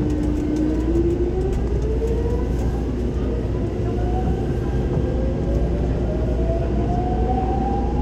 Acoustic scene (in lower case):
subway train